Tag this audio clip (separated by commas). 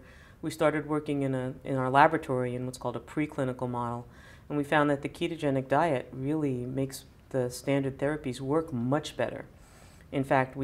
Speech, inside a small room